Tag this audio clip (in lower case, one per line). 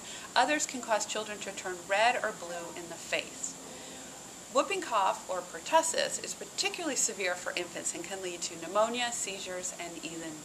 speech